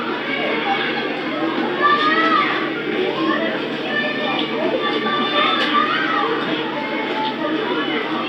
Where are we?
in a park